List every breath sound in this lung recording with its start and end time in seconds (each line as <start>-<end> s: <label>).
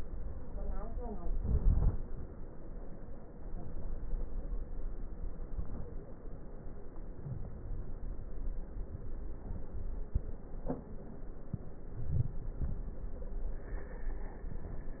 1.18-2.29 s: inhalation
1.18-2.29 s: crackles
5.35-6.14 s: inhalation
5.35-6.14 s: crackles
7.13-8.00 s: inhalation
7.13-8.00 s: crackles